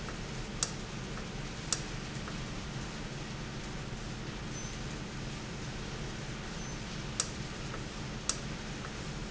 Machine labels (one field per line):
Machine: valve